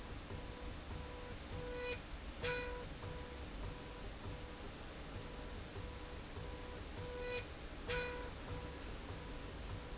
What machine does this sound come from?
slide rail